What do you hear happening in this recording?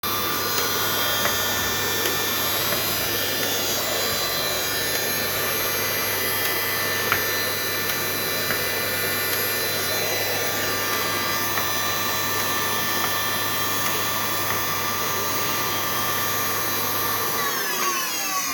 A recodring vacuum cleaner while cleaning bedroom area.